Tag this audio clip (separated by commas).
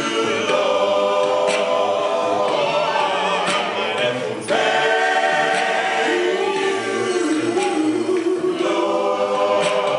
Music, Choir